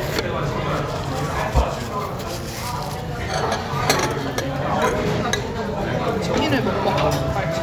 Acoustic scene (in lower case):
restaurant